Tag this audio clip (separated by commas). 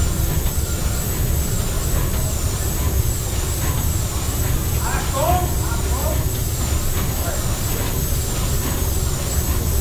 Heavy engine (low frequency), Speech, Engine